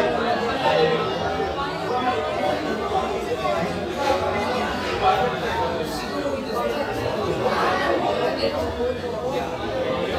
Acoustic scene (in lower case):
crowded indoor space